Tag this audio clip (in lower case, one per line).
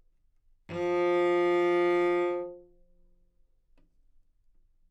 music
bowed string instrument
musical instrument